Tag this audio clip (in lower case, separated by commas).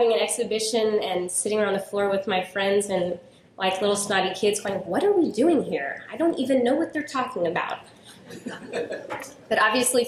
speech, woman speaking, monologue